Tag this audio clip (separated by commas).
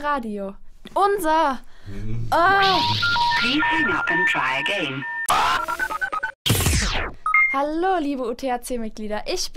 Music, Speech